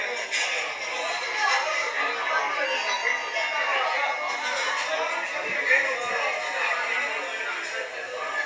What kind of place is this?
crowded indoor space